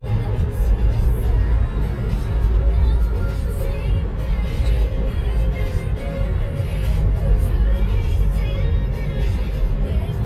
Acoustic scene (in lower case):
car